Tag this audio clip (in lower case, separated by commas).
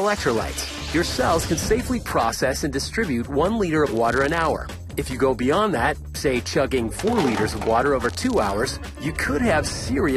speech, music